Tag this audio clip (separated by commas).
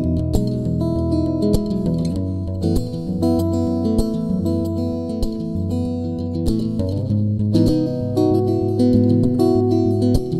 Guitar, Plucked string instrument, Musical instrument